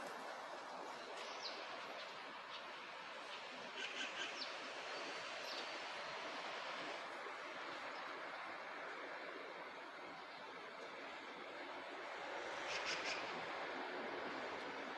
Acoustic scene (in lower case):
park